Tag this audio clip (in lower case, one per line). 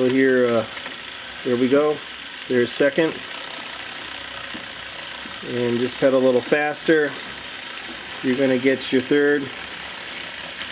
speech
vehicle
bicycle